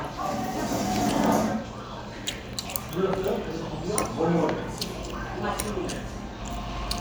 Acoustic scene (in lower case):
restaurant